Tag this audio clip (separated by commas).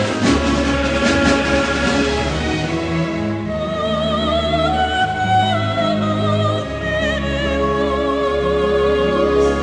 Music